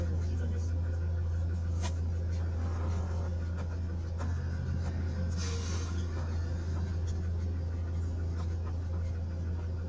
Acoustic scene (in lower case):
car